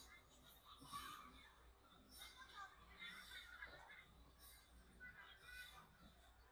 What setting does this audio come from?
residential area